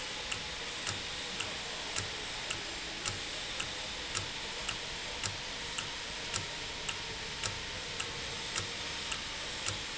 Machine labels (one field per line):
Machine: valve